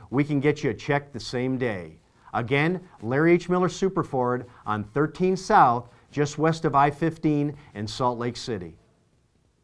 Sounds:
Speech

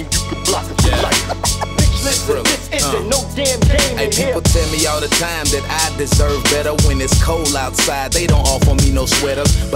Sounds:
Exciting music, Music

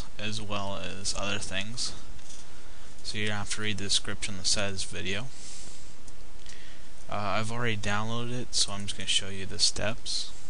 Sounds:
Speech

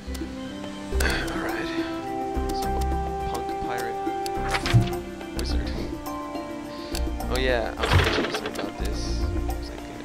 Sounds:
Music, Speech

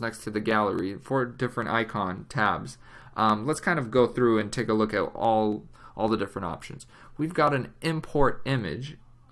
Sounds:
Speech

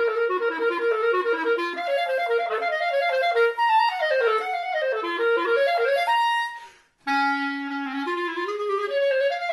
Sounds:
playing clarinet

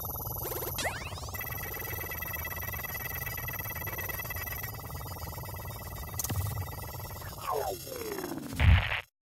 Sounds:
Music, Sound effect

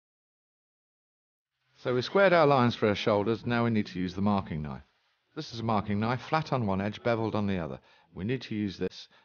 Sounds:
Speech

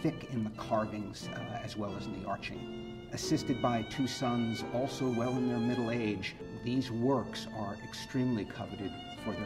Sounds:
Speech, Music, Musical instrument

